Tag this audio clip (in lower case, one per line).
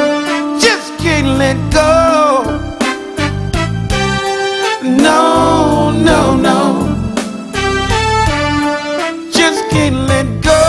music